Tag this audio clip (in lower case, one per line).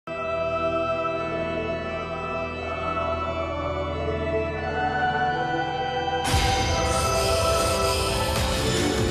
theme music
music